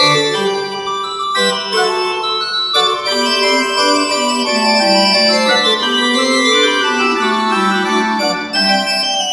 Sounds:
music
piano
musical instrument
organ
keyboard (musical)

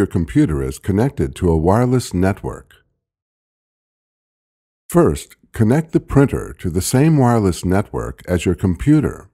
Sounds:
speech

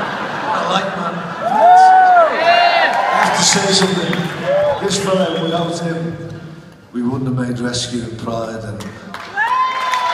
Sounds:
speech
inside a public space

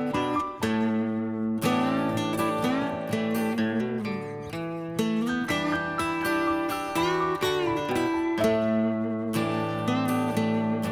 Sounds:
music

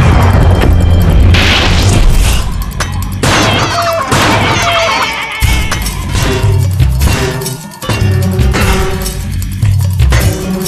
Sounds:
music

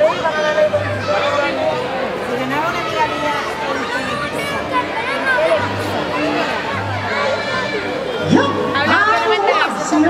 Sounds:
music
speech

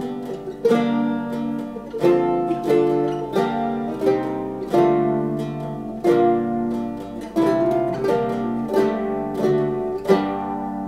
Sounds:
mandolin
music

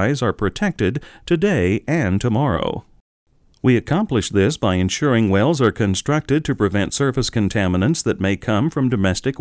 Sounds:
speech

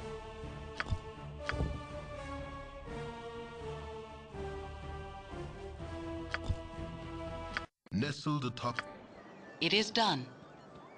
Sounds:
speech
music

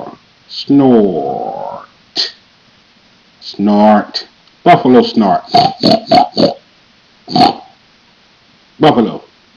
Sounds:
growling

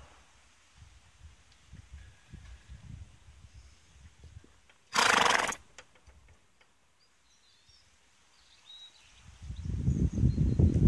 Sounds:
horse neighing

